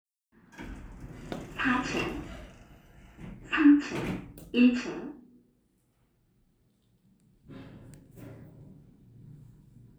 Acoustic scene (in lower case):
elevator